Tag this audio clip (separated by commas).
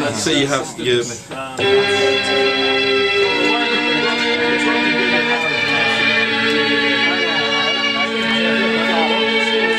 Keyboard (musical), Speech, Music, Musical instrument